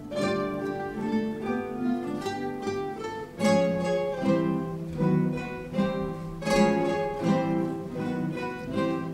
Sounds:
Strum, Plucked string instrument, Guitar, Music, Musical instrument

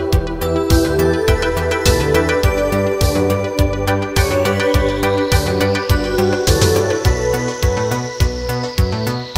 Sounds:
Music

